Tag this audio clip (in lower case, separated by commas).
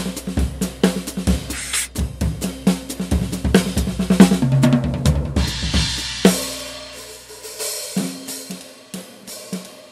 cymbal, hi-hat, playing cymbal